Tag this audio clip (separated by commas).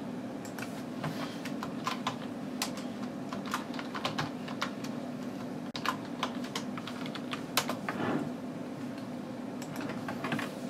Typing